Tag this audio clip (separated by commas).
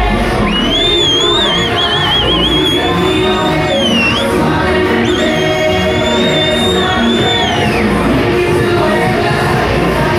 Music